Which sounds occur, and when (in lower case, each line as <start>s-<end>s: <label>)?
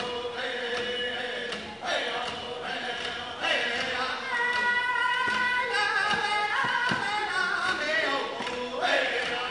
0.0s-1.6s: male singing
0.0s-9.5s: music
1.8s-4.2s: male singing
4.2s-8.8s: female singing
8.8s-9.5s: male singing